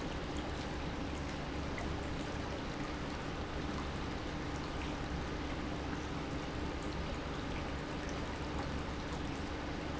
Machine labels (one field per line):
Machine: pump